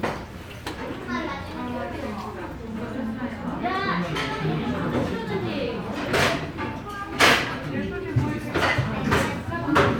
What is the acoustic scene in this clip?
restaurant